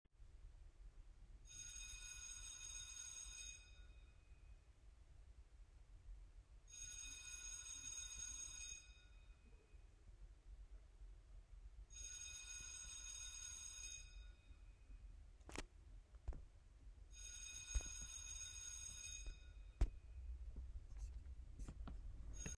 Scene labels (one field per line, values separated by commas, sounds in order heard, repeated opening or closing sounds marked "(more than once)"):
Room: hallway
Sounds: bell ringing, footsteps